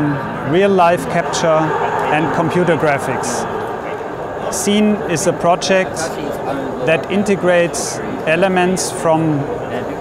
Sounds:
speech

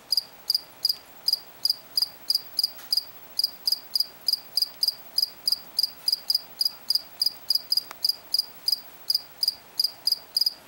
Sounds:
cricket chirping

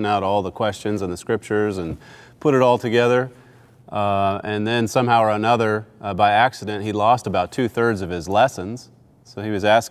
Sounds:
speech

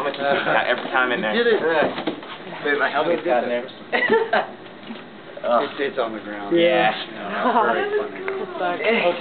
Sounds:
speech

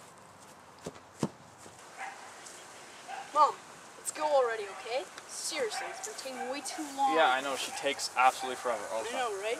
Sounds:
speech
crackle

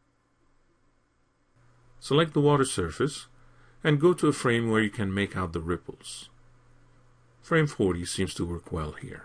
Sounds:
speech

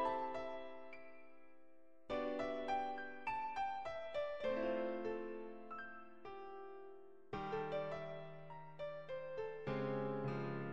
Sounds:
music
musical instrument

